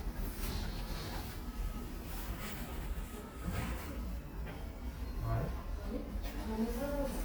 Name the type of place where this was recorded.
elevator